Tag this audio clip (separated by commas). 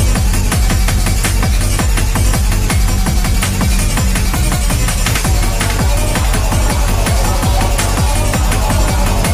Music